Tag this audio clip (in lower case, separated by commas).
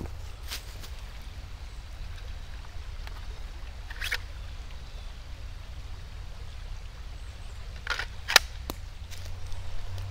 tools